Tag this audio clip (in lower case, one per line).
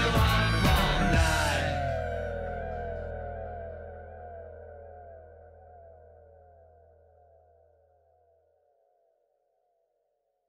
music